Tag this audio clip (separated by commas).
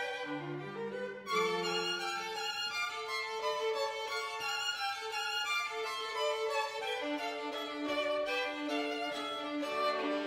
New-age music, Music